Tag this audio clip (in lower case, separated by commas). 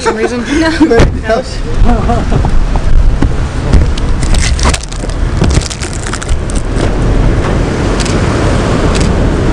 car